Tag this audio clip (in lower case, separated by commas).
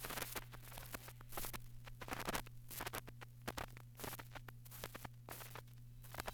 crackle